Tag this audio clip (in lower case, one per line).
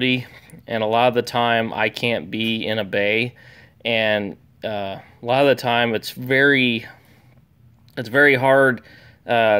speech